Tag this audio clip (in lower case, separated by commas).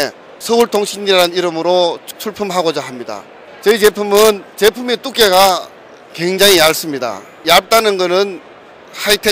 speech